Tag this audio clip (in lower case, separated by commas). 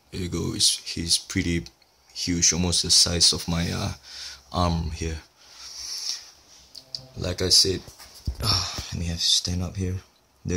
speech, inside a small room